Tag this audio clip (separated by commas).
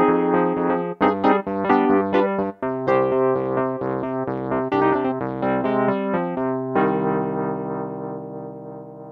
Electric piano, playing piano, Music, Musical instrument, Keyboard (musical), Piano